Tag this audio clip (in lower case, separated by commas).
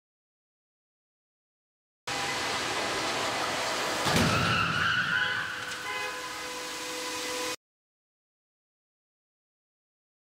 inside a large room or hall, car, vehicle